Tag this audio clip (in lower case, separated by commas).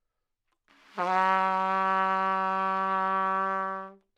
music, brass instrument, trumpet, musical instrument